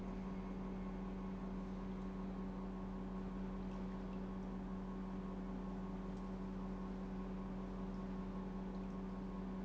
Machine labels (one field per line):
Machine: pump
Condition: normal